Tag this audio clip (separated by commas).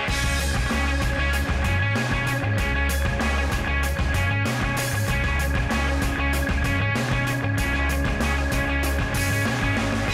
Music